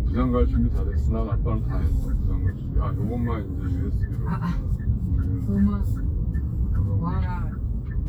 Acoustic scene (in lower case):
car